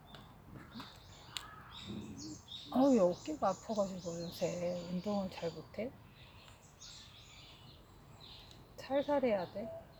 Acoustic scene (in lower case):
park